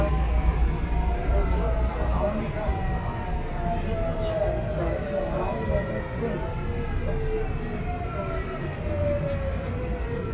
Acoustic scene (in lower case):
subway train